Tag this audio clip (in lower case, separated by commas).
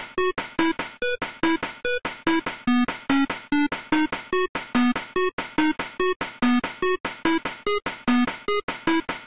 music, soundtrack music